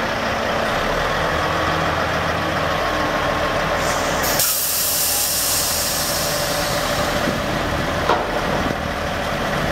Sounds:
Steam, Hiss

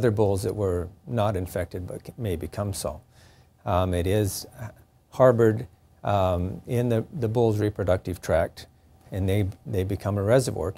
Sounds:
Speech

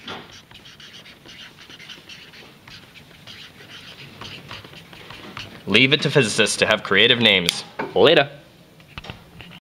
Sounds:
Speech

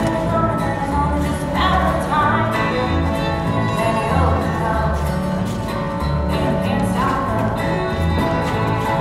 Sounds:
fiddle, Musical instrument, Music

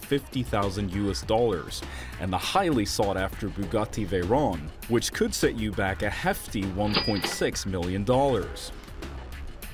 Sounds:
Speech, Music

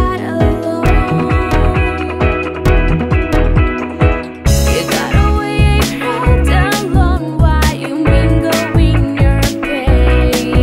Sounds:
Music, Soundtrack music

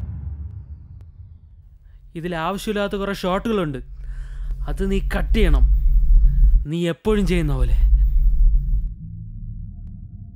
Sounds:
Speech

